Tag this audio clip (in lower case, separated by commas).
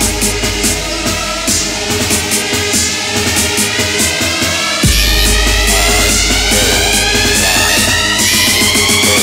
music